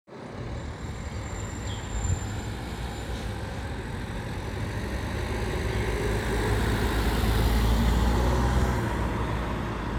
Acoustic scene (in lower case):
residential area